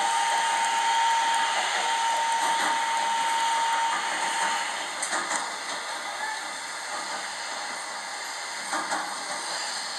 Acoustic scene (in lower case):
subway train